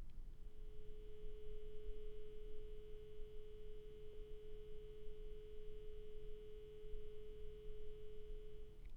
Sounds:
Alarm, Telephone

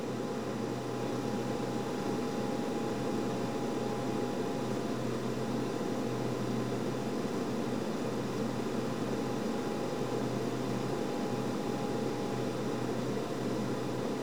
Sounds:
Aircraft, Vehicle

